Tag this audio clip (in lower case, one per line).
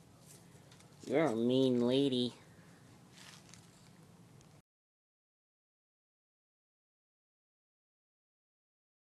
speech